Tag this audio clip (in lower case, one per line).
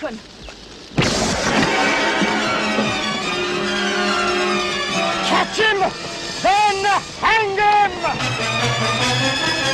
music
speech